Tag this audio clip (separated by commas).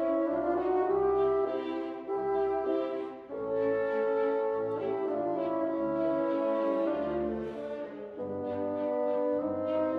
fiddle, Music, Orchestra, French horn, Musical instrument